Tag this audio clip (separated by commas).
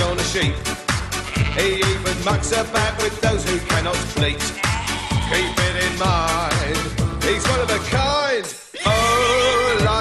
Music, livestock, Animal, Sheep